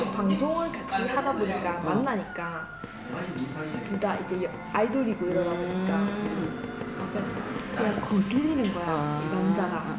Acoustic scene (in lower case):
crowded indoor space